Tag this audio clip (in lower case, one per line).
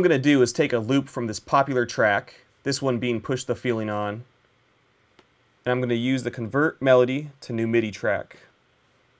speech